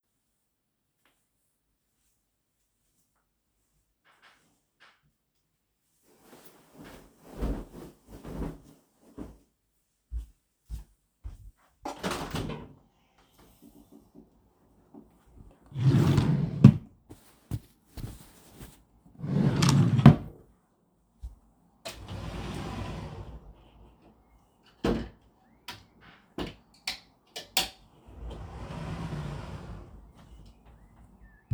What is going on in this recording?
I stood up from bed, went to the window and opened it. Afterwards I opened the drawer and took a T-Shirt. I went to the wardrobe, opened it, took a sweater hanging on a coat hook and closed the wardrobe